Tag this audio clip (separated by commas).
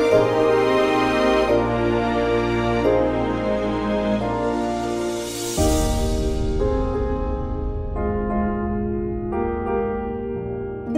Soundtrack music, Music, Background music